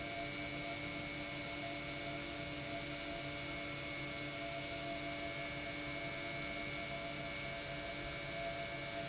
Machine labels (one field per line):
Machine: pump